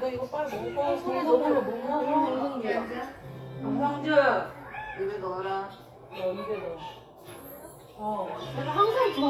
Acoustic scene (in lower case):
crowded indoor space